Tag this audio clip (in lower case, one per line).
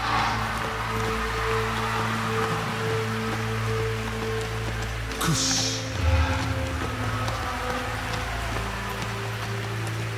music